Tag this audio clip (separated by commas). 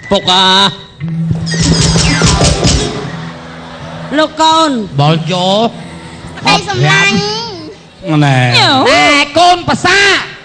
Music, Speech, inside a large room or hall